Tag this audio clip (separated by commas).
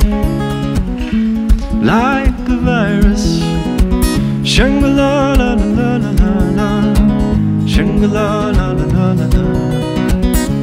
Music